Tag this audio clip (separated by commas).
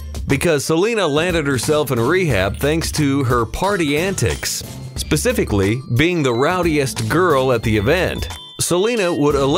Speech, Music